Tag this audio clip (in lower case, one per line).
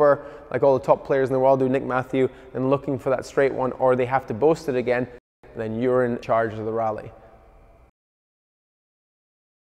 playing squash